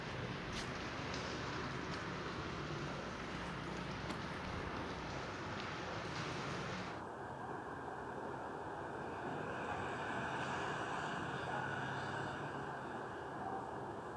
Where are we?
in a residential area